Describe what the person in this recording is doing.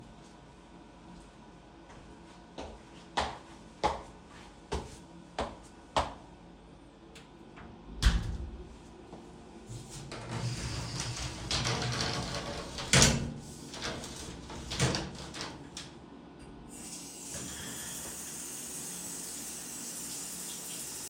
I walked to my bathroom,opened the door,entered into the shower,closed the door and turned on the water.